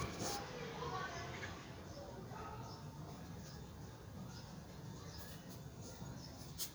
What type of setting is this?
residential area